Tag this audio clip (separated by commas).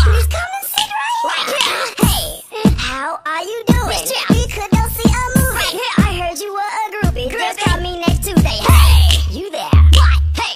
Music